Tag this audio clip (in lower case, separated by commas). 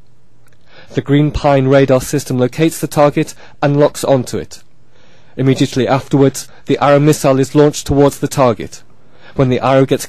speech